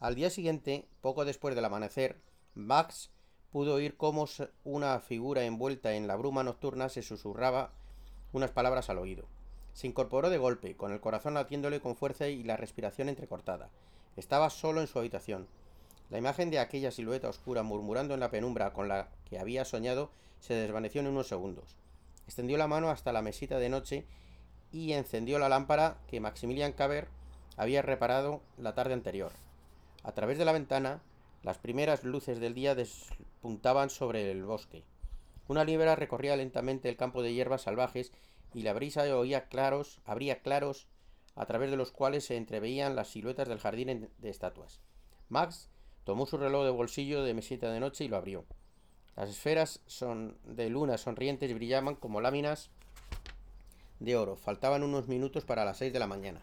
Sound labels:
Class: speech